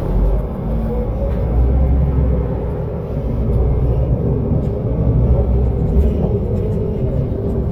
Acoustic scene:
bus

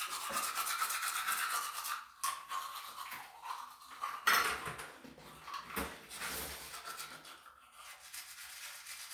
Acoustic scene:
restroom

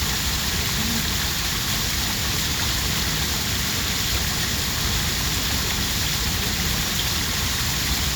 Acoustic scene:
park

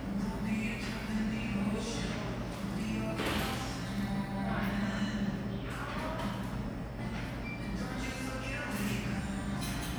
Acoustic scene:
cafe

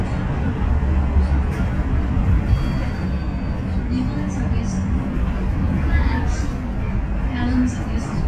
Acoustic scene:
bus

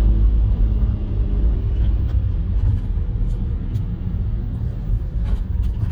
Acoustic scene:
car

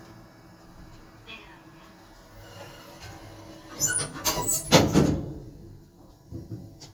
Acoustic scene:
elevator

